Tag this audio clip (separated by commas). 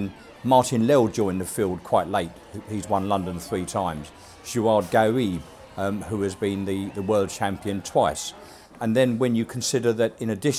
outside, urban or man-made, Speech